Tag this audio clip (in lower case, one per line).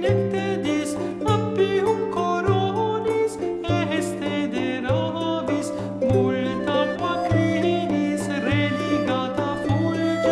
music
theme music